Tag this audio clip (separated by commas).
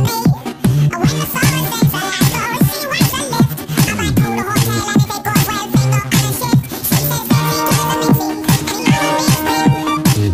Music